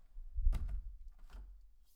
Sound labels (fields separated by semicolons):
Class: window; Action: closing